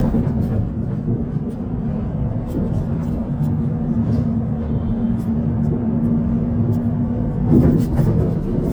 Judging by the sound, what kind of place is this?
bus